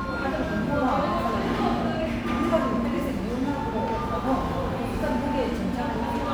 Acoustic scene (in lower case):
cafe